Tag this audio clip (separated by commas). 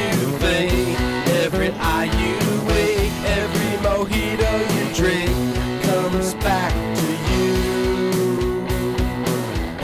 Music